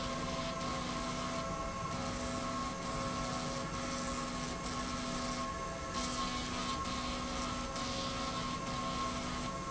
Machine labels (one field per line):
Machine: slide rail